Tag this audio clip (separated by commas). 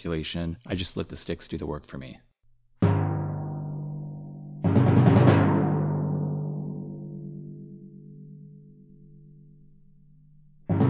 Music, Speech, Percussion